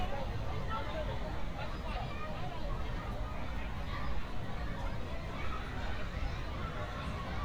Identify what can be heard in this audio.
person or small group talking